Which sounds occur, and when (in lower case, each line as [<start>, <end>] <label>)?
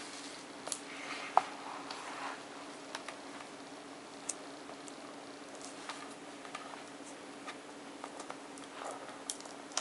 [0.00, 0.42] surface contact
[0.00, 9.80] mechanisms
[0.66, 0.77] tick
[0.87, 2.39] surface contact
[1.30, 1.40] tap
[1.82, 1.91] tick
[2.89, 3.12] tick
[3.30, 3.47] generic impact sounds
[4.21, 4.35] tick
[4.62, 4.94] generic impact sounds
[5.53, 5.72] generic impact sounds
[5.81, 5.94] tick
[6.37, 6.78] generic impact sounds
[6.99, 7.15] surface contact
[7.41, 7.56] generic impact sounds
[7.97, 8.32] generic impact sounds
[8.54, 9.04] generic impact sounds
[9.23, 9.36] tick
[9.32, 9.54] generic impact sounds
[9.66, 9.80] generic impact sounds